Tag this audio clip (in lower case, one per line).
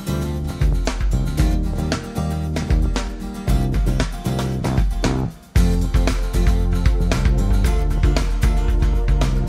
music